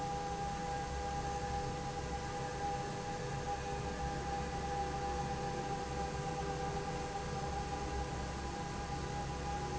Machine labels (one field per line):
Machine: fan